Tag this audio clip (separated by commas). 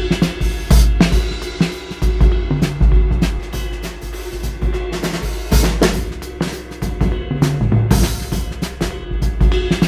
Music